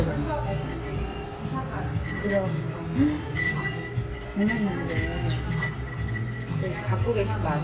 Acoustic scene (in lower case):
cafe